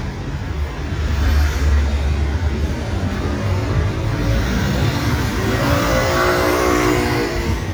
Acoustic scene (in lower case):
street